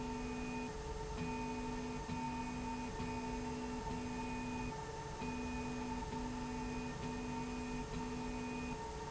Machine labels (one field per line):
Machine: slide rail